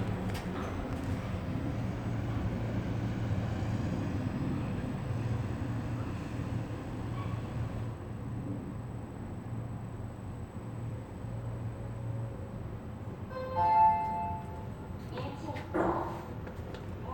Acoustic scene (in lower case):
elevator